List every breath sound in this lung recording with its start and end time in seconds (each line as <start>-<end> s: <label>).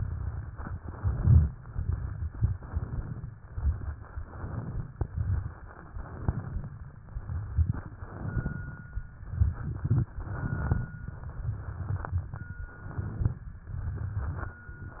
0.00-0.76 s: inhalation
0.00-0.79 s: crackles
0.79-1.45 s: exhalation
0.80-1.42 s: crackles
1.66-2.45 s: crackles
1.66-2.48 s: inhalation
2.50-3.30 s: crackles
2.50-3.33 s: exhalation
3.49-4.29 s: crackles
3.49-4.32 s: inhalation
4.32-4.93 s: exhalation
4.32-4.89 s: crackles
4.93-5.84 s: crackles
4.95-5.85 s: inhalation
5.86-6.67 s: crackles
5.88-6.70 s: exhalation
6.98-7.86 s: crackles
6.99-7.87 s: inhalation
7.95-8.84 s: exhalation
7.97-8.85 s: crackles
9.27-10.00 s: crackles
9.30-10.03 s: inhalation
10.11-10.84 s: exhalation
10.12-10.85 s: crackles
11.08-12.04 s: crackles
11.08-12.05 s: inhalation
12.05-12.66 s: crackles
12.07-12.68 s: exhalation
12.72-13.45 s: inhalation
12.72-13.45 s: crackles
13.66-14.62 s: crackles
13.69-14.58 s: exhalation
14.98-15.00 s: inhalation
14.98-15.00 s: crackles